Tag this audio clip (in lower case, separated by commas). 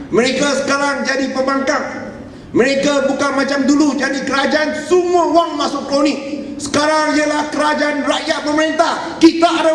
man speaking, narration, speech